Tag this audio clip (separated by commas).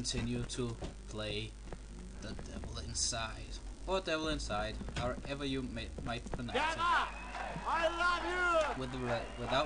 Speech